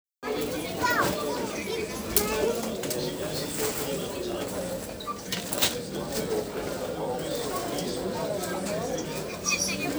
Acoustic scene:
crowded indoor space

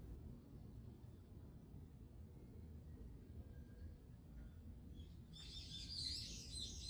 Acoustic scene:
residential area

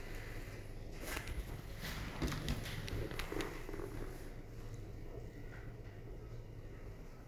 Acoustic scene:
elevator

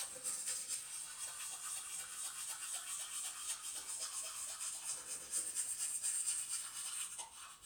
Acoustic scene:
restroom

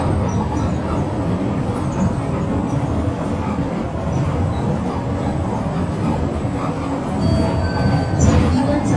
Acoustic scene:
bus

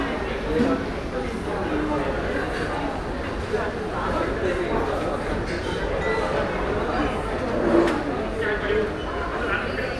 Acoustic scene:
crowded indoor space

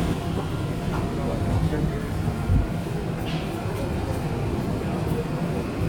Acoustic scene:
subway train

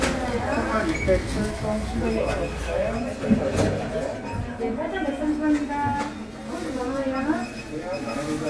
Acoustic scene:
crowded indoor space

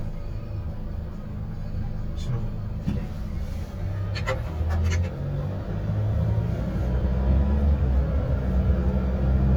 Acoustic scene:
car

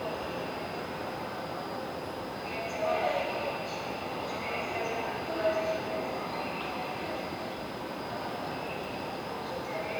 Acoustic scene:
subway station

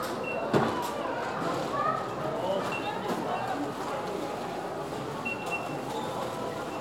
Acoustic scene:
crowded indoor space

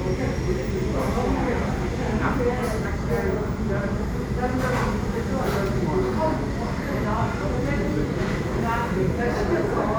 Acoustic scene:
crowded indoor space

